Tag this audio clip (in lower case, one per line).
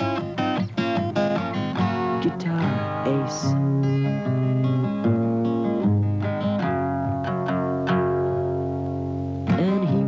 musical instrument
strum
music
guitar
plucked string instrument